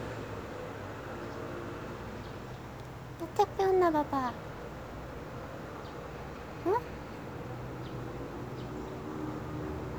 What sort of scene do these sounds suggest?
residential area